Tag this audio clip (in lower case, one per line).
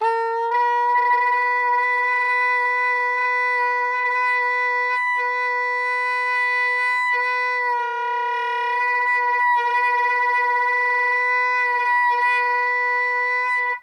musical instrument
wind instrument
music